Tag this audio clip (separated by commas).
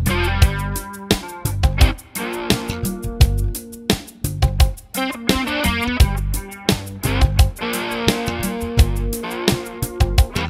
Music